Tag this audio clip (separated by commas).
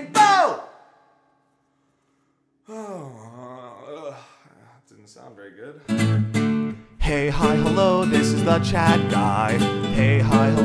Music, Plucked string instrument, Acoustic guitar, Musical instrument, Guitar, Singing